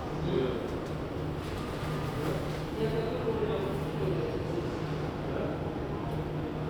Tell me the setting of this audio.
subway station